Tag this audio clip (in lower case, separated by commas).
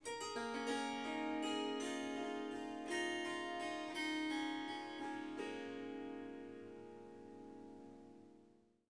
musical instrument, harp, music